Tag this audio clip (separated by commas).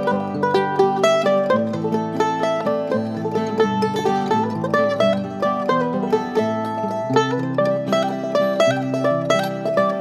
Mandolin, Music